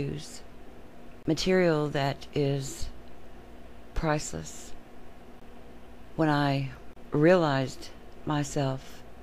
A woman giving a speech